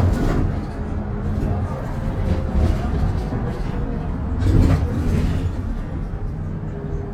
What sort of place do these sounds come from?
bus